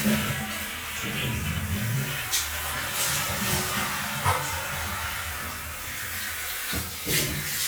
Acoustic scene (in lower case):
restroom